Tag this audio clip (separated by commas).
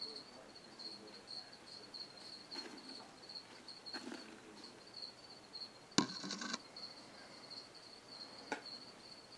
Insect, Cricket